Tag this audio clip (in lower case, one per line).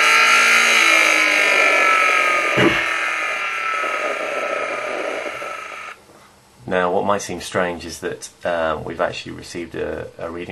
engine
speech